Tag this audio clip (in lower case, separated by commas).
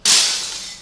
glass, shatter